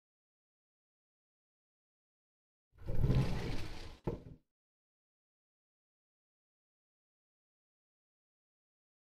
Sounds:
speech

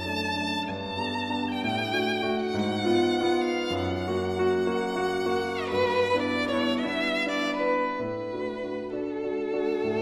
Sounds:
music
fiddle
musical instrument

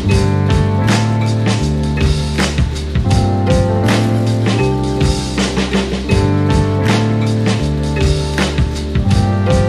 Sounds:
music

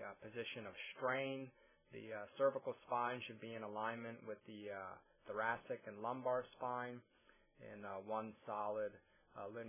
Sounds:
speech

